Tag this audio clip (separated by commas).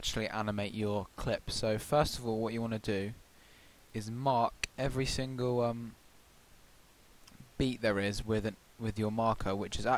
Speech